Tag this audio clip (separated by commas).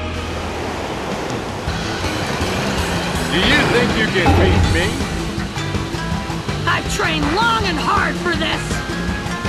Speech, Music